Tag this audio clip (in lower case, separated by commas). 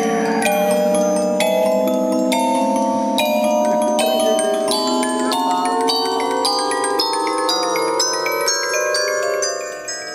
speech, music